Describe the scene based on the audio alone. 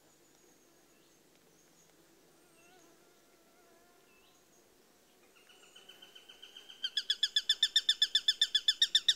Silence then a fast bird chirping sound